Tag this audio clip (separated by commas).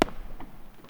Fireworks, Explosion